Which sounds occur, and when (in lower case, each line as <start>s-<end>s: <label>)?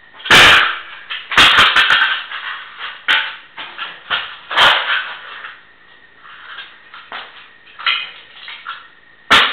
0.0s-9.5s: mechanisms
0.2s-0.8s: thump
1.0s-3.4s: breaking
3.6s-4.3s: breaking
4.5s-5.1s: breaking
5.2s-5.6s: surface contact
5.8s-6.0s: surface contact
6.2s-6.5s: surface contact
6.5s-6.7s: generic impact sounds
6.9s-7.5s: generic impact sounds
7.7s-8.2s: breaking
8.3s-8.8s: generic impact sounds
9.3s-9.5s: thump